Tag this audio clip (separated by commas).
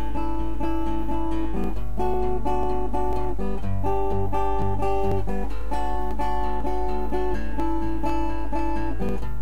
Plucked string instrument, Guitar, Musical instrument, Music, Acoustic guitar